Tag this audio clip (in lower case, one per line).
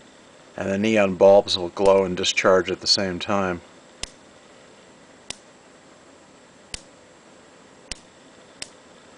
speech